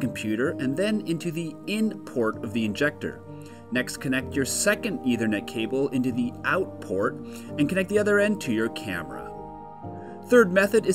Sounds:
speech, music

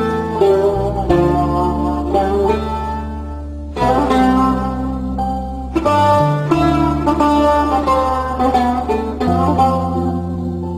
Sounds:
sad music, music

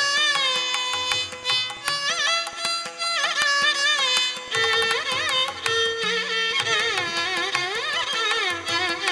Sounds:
musical instrument, violin, fiddle, music

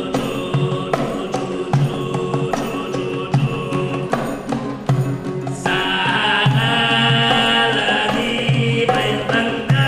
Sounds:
music, male singing

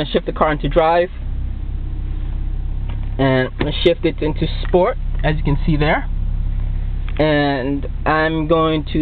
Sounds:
vehicle, speech, car

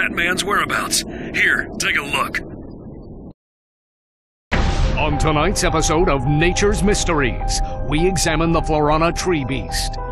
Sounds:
music, speech

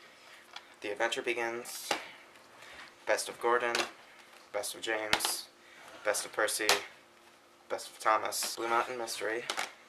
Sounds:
speech

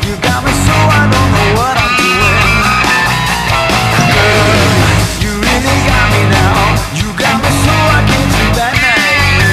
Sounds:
bass guitar, plucked string instrument, music, guitar, musical instrument, strum

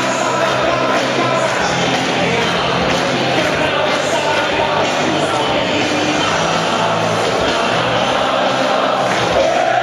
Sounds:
crowd

